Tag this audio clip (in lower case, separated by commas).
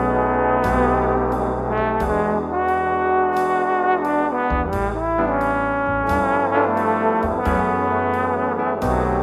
playing trombone